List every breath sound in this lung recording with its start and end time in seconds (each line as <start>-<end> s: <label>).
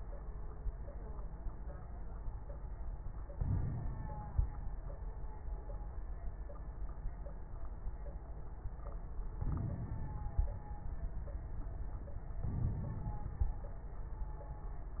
3.35-4.45 s: inhalation
3.35-4.45 s: crackles
9.41-10.51 s: inhalation
9.41-10.51 s: crackles
12.46-13.66 s: inhalation
12.46-13.66 s: crackles